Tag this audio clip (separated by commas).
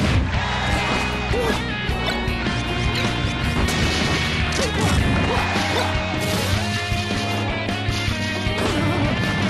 Music, Theme music